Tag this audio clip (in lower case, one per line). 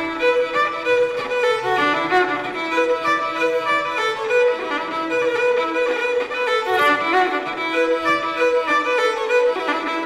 music
violin
musical instrument